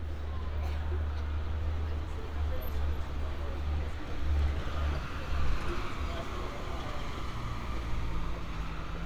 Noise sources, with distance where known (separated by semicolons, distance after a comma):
medium-sounding engine; person or small group talking